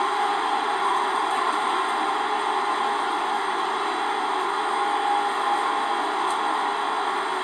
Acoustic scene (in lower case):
subway train